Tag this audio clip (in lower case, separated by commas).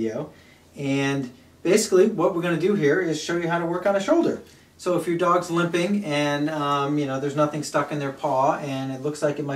speech